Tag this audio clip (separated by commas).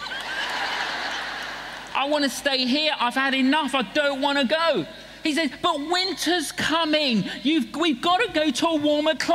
Speech